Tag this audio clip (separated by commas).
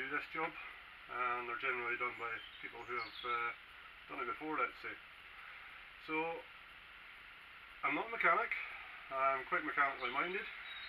Speech